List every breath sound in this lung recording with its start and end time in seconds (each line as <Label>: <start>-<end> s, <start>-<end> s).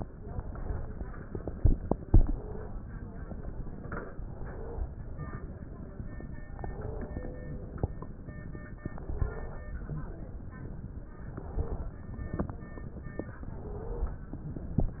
Inhalation: 2.00-2.70 s, 4.22-4.92 s, 6.59-7.29 s, 8.93-9.63 s, 11.29-11.99 s, 13.48-14.18 s
Wheeze: 2.00-2.70 s, 4.22-4.92 s, 6.59-7.29 s, 8.93-9.63 s, 11.29-11.99 s, 13.48-14.18 s